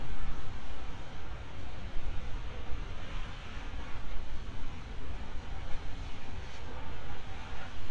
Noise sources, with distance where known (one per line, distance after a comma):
background noise